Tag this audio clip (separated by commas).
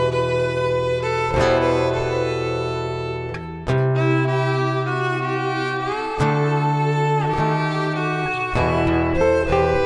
Music, Musical instrument, fiddle